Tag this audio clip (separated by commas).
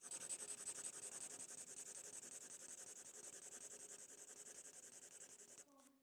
home sounds, Writing